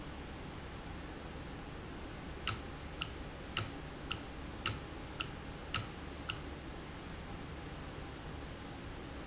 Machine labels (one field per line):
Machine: valve